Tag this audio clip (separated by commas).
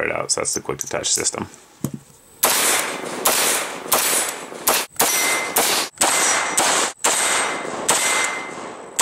Speech, outside, rural or natural